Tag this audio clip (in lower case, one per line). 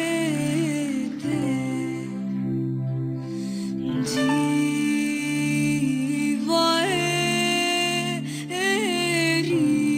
music
soul music